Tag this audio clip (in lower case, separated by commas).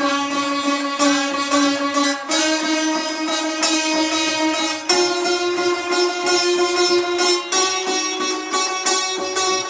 sitar, musical instrument, music, plucked string instrument, classical music, carnatic music